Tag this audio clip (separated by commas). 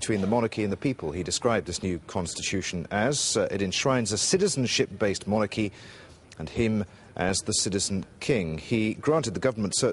Narration, Speech, man speaking